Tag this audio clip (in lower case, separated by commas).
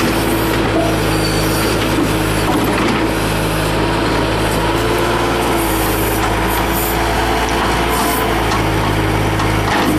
lawn mower, vehicle